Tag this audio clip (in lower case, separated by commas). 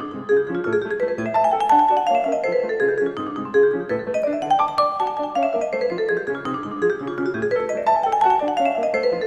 playing vibraphone